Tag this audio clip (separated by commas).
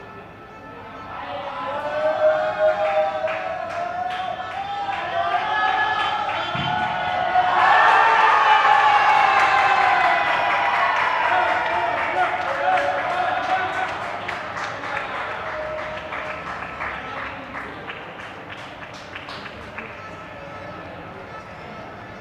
Human group actions, Cheering